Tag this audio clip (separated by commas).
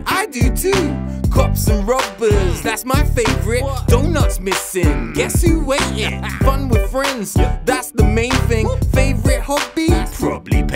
Music